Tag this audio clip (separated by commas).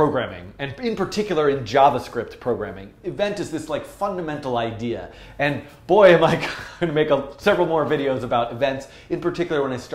Speech